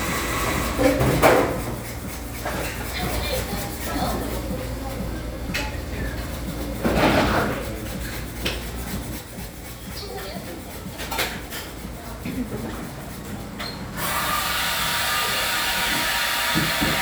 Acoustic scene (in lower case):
cafe